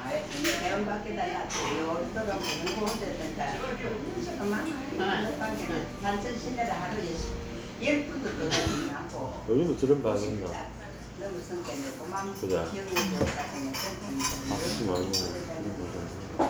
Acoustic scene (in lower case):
crowded indoor space